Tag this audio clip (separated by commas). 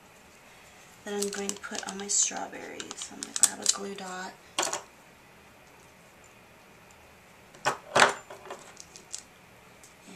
Speech, inside a small room